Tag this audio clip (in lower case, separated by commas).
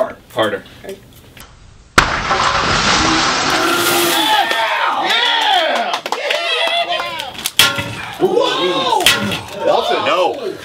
speech, breaking